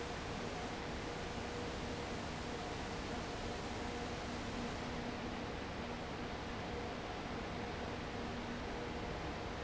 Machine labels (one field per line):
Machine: fan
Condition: abnormal